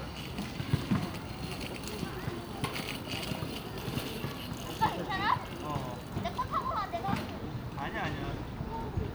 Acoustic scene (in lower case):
residential area